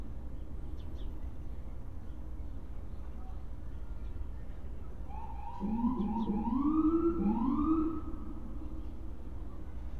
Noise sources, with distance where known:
siren; person or small group talking, far

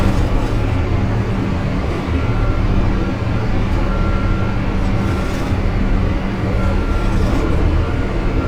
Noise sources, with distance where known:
unidentified impact machinery; unidentified alert signal

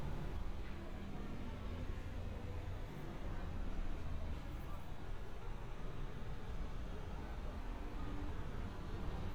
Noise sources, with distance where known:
background noise

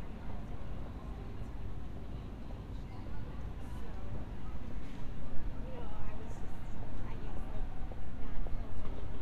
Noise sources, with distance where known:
person or small group talking, far

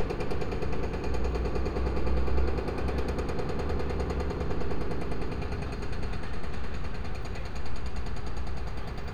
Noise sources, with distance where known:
hoe ram

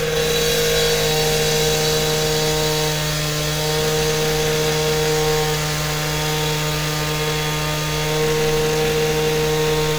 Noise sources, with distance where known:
large rotating saw, near

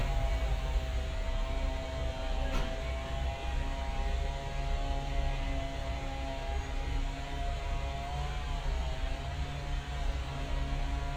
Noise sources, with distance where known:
engine of unclear size

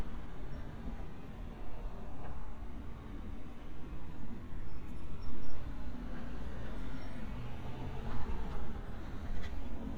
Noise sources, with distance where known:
medium-sounding engine

